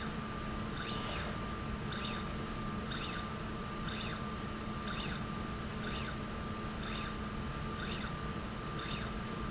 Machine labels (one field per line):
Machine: slide rail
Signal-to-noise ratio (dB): -6 dB